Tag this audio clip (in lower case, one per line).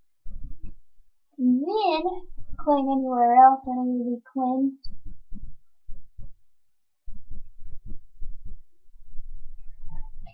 inside a small room
speech